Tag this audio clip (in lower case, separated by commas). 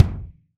drum, bass drum, music, musical instrument, percussion